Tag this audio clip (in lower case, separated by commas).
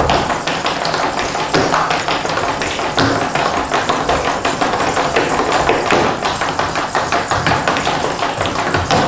tap